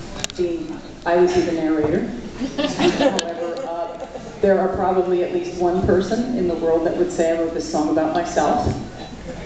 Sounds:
speech

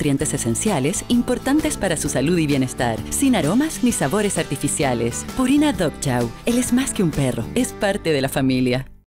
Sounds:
music, speech

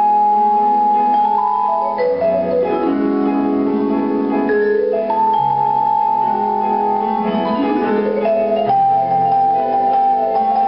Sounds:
musical instrument, vibraphone, percussion, playing vibraphone, music

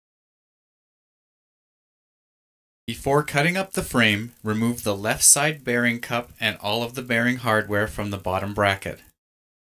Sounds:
speech

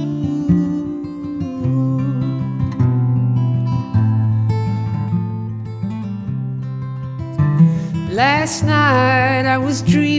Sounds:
music, acoustic guitar, singing

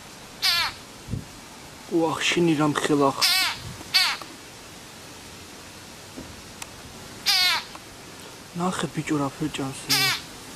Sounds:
speech, animal

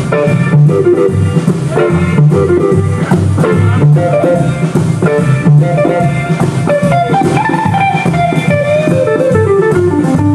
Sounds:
plucked string instrument, strum, music, guitar, musical instrument

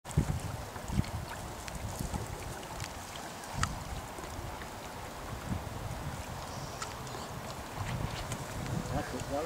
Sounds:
sailing ship, speech, vehicle

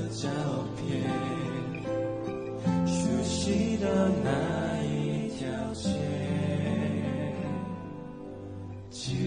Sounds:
male singing, music

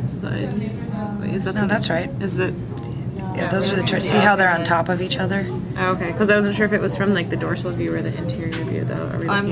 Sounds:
speech

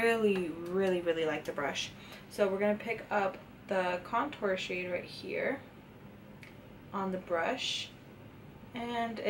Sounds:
speech

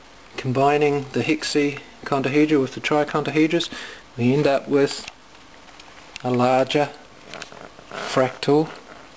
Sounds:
inside a small room, speech

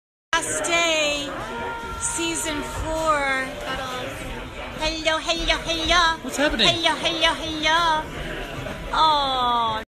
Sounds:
speech

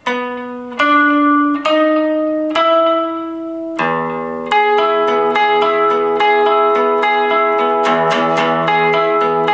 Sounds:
plucked string instrument, musical instrument, music, guitar, inside a small room

